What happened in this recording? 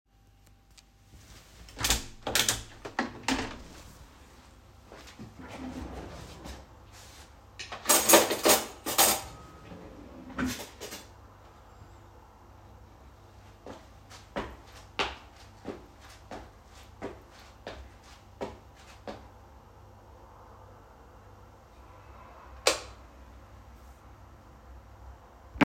I opened the window and at the same time opened a kitchen drawer causing cutlery to clatter, with all three sounds overlapping. I then walked across the room and turned on the light switch.